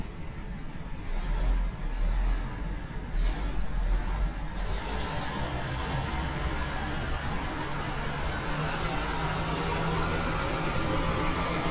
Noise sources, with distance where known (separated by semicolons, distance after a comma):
large-sounding engine, near